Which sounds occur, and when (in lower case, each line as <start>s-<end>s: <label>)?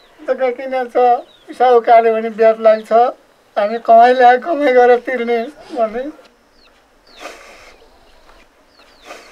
0.0s-0.1s: bird call
0.0s-9.3s: wind
0.1s-1.2s: man speaking
1.1s-1.5s: bird call
1.4s-3.1s: man speaking
2.7s-2.8s: bird call
3.5s-6.1s: man speaking
3.6s-3.7s: bird call
5.2s-5.5s: bird call
6.1s-9.3s: bird
6.5s-6.7s: bird call
6.9s-8.0s: human voice
7.0s-7.2s: bird call
7.7s-8.4s: bird call
8.7s-9.0s: bird call
9.2s-9.3s: bird call